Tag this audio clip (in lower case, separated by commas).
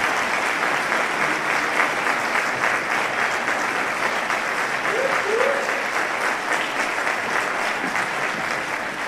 people clapping, applause